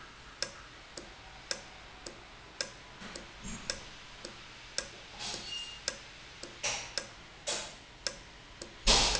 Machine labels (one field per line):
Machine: valve